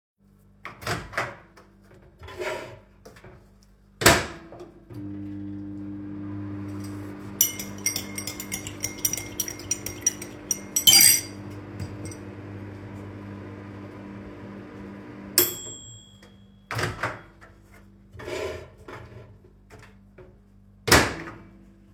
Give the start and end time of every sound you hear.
[0.51, 1.75] microwave
[3.88, 16.22] microwave
[7.33, 11.42] cutlery and dishes
[16.56, 17.45] microwave
[20.66, 21.55] microwave

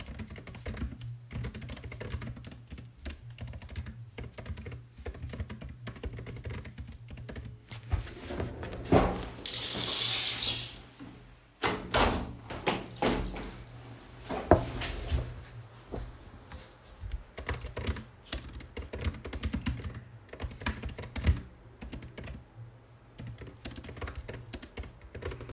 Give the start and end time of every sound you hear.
[0.00, 7.58] keyboard typing
[11.57, 13.63] window
[17.07, 25.53] keyboard typing

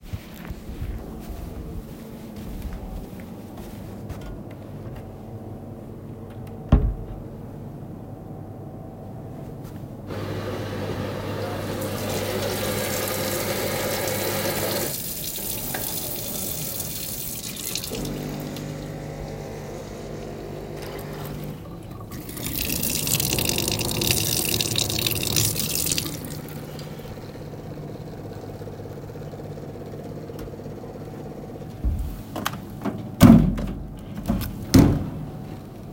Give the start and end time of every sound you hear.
[0.00, 10.37] footsteps
[6.39, 7.53] wardrobe or drawer
[8.91, 33.85] coffee machine
[11.42, 20.05] running water
[22.30, 26.42] running water

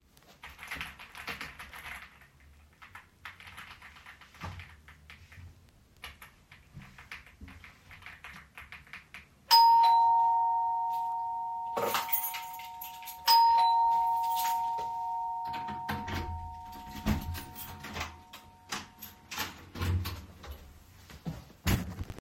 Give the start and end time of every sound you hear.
[0.22, 9.92] keyboard typing
[9.48, 19.33] bell ringing
[11.77, 16.18] keys
[15.81, 22.21] door

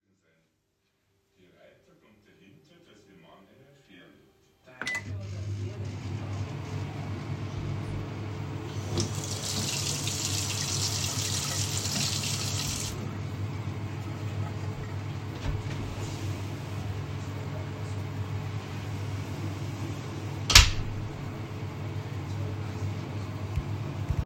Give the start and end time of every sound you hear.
[4.74, 24.25] microwave
[8.94, 12.93] running water
[20.51, 20.81] door

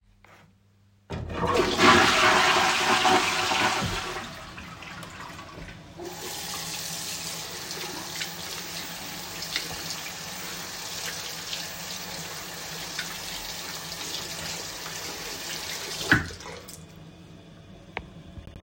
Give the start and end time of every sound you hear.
[1.07, 6.00] toilet flushing
[5.94, 16.90] running water

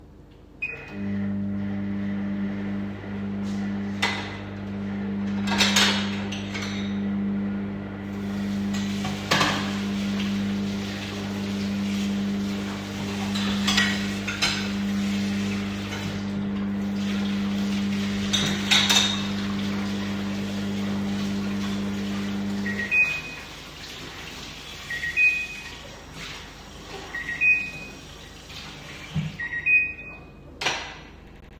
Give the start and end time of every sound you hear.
[0.00, 31.59] microwave
[3.95, 4.50] cutlery and dishes
[5.10, 7.64] cutlery and dishes
[7.64, 8.73] running water
[8.73, 11.13] cutlery and dishes
[11.13, 12.52] running water
[12.52, 22.64] cutlery and dishes
[30.51, 31.32] cutlery and dishes

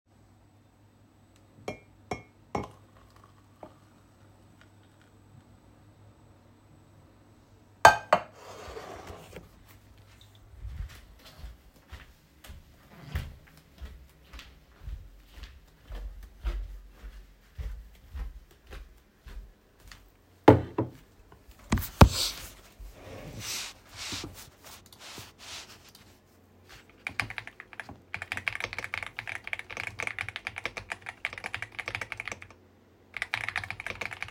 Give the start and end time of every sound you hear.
[1.54, 2.77] cutlery and dishes
[7.72, 9.51] cutlery and dishes
[10.62, 20.40] footsteps
[20.40, 20.91] cutlery and dishes
[21.71, 22.46] cutlery and dishes
[26.99, 32.57] keyboard typing
[33.11, 34.30] keyboard typing

